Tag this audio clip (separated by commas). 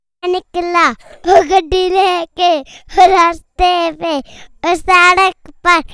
Human voice, Singing